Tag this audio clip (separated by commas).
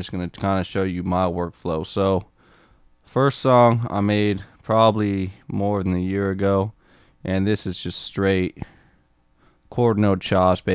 Speech